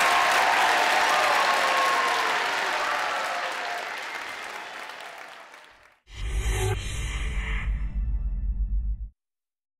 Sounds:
applause

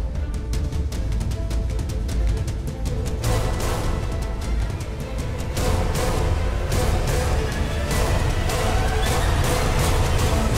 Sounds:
music

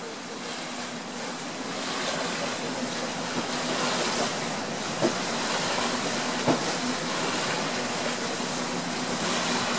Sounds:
water vehicle
vehicle

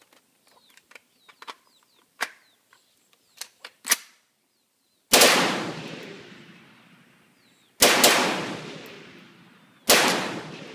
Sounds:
gunshot
machine gun shooting
machine gun

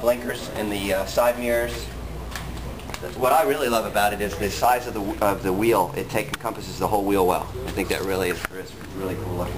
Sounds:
speech

